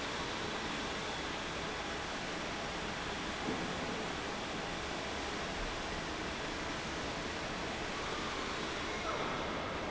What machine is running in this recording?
fan